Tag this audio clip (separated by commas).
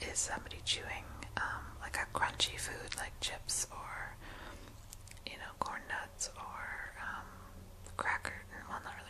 Whispering, Speech